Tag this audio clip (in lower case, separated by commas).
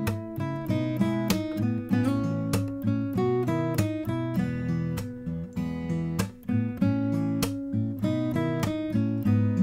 acoustic guitar, music